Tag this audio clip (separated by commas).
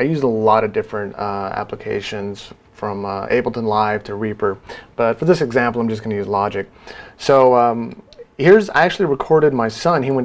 Speech